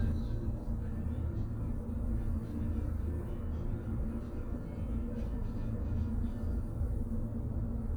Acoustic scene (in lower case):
bus